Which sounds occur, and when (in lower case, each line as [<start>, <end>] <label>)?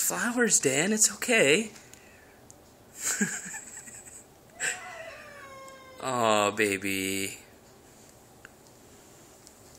[0.00, 1.70] man speaking
[0.00, 9.75] background noise
[1.69, 2.00] generic impact sounds
[1.71, 2.48] meow
[2.37, 2.63] generic impact sounds
[2.87, 4.24] laughter
[4.56, 6.23] meow
[5.58, 5.81] generic impact sounds
[5.97, 7.44] man speaking
[7.98, 8.16] generic impact sounds
[8.33, 8.50] generic impact sounds
[8.60, 8.73] generic impact sounds
[9.39, 9.53] generic impact sounds